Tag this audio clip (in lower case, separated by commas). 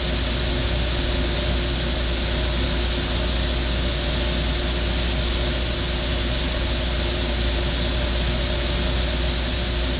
inside a small room